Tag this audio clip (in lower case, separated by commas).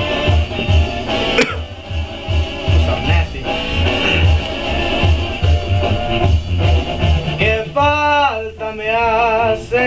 music, speech, male singing